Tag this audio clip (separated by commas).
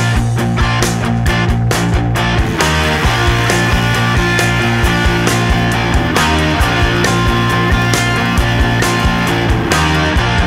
Music